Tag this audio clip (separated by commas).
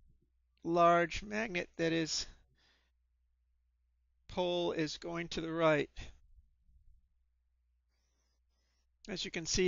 Speech